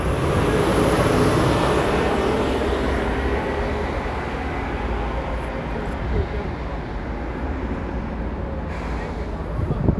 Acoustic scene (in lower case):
street